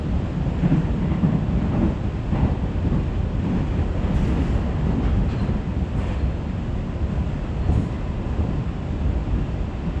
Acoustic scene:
subway train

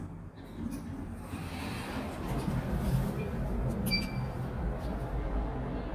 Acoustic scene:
elevator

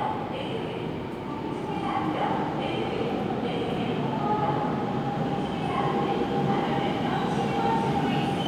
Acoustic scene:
subway station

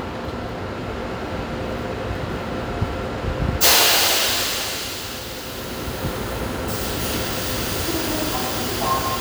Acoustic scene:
subway station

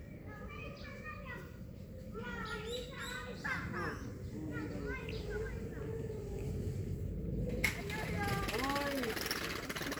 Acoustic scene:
park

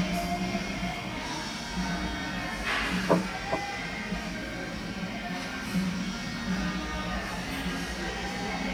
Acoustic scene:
cafe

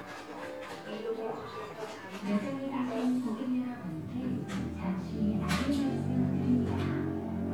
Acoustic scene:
cafe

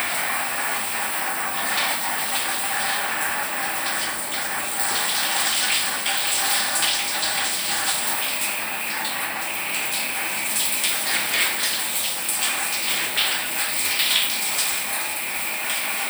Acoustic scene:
restroom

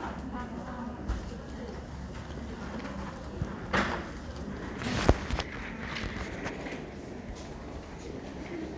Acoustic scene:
crowded indoor space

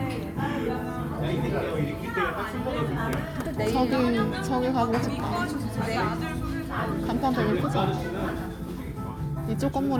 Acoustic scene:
crowded indoor space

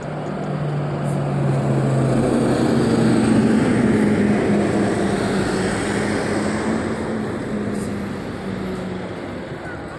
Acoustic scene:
street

